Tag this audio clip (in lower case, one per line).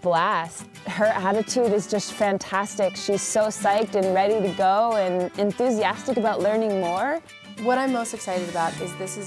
speech
music